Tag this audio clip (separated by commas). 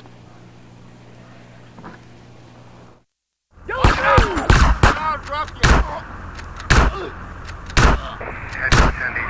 Speech